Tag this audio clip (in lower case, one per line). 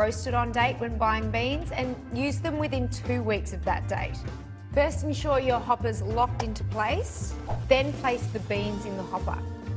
music
speech